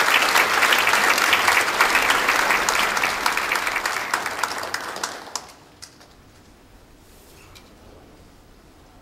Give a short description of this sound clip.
A crowd applauding followed by silence and some shuffling and squeaking